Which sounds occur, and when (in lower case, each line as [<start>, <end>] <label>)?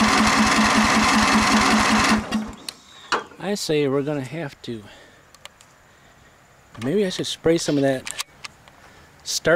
[0.00, 2.17] lawn mower
[0.00, 9.55] wind
[2.24, 2.40] generic impact sounds
[2.53, 3.29] bird vocalization
[2.59, 2.73] generic impact sounds
[3.03, 3.24] generic impact sounds
[3.12, 4.94] male speech
[4.18, 4.31] generic impact sounds
[4.59, 5.65] breathing
[5.32, 5.62] generic impact sounds
[5.84, 6.82] breathing
[6.71, 6.93] generic impact sounds
[6.73, 8.04] male speech
[7.60, 7.99] surface contact
[7.60, 8.05] lawn mower
[8.02, 8.28] generic impact sounds
[8.42, 8.69] generic impact sounds
[8.64, 9.23] breathing